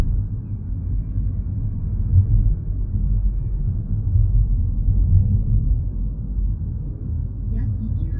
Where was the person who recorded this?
in a car